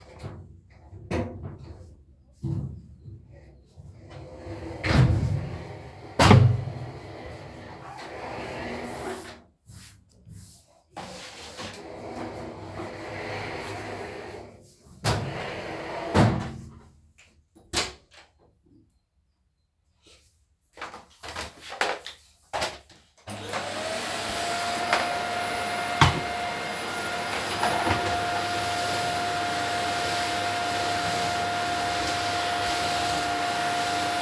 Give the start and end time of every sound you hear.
[17.49, 18.39] door
[23.27, 34.22] vacuum cleaner

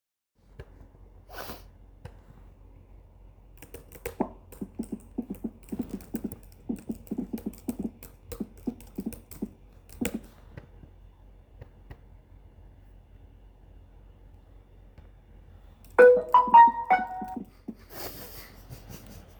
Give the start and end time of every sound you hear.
[3.56, 10.48] keyboard typing
[15.87, 18.50] phone ringing

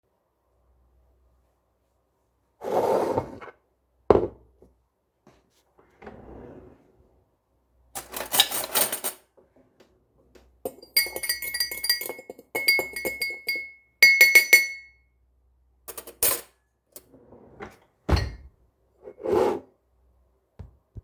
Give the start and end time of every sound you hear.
[2.43, 4.51] cutlery and dishes
[2.56, 3.64] wardrobe or drawer
[5.70, 6.84] wardrobe or drawer
[7.94, 9.43] cutlery and dishes
[10.53, 14.96] cutlery and dishes
[15.76, 16.61] cutlery and dishes
[16.76, 18.48] wardrobe or drawer
[18.94, 19.83] cutlery and dishes
[19.01, 19.72] wardrobe or drawer

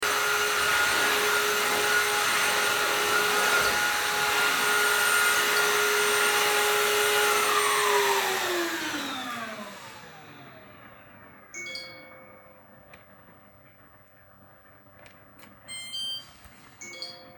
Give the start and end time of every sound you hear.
[0.00, 13.07] vacuum cleaner
[11.47, 12.25] phone ringing
[16.75, 17.37] phone ringing

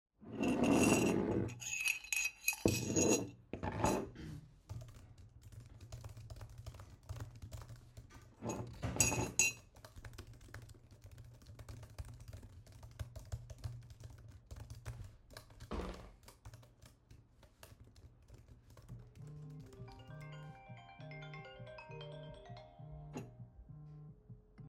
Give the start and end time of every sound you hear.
[0.29, 4.20] cutlery and dishes
[4.62, 19.49] keyboard typing
[8.34, 9.70] cutlery and dishes
[19.47, 24.68] phone ringing

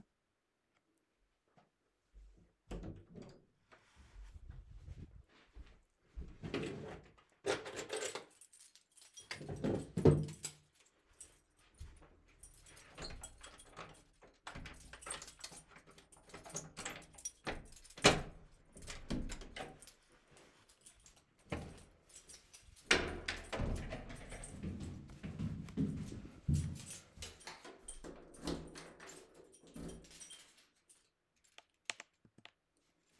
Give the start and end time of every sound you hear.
[5.77, 10.93] keys
[6.17, 7.25] wardrobe or drawer
[9.52, 10.51] wardrobe or drawer
[11.12, 31.22] keys
[12.30, 20.16] door
[22.72, 24.92] door
[25.43, 28.02] footsteps
[28.05, 31.22] door

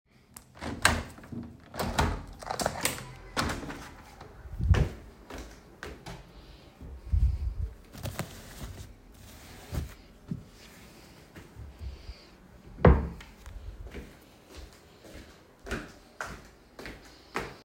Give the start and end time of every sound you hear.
[0.57, 4.45] window
[4.55, 6.86] footsteps
[7.09, 8.74] wardrobe or drawer
[12.61, 13.46] wardrobe or drawer
[13.65, 17.64] footsteps

